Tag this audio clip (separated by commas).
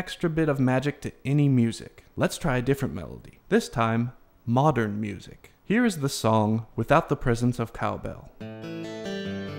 inside a small room, Harpsichord, Speech, Music